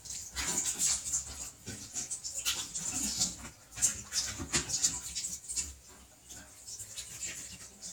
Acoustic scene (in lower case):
restroom